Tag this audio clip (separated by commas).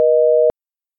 Alarm, Telephone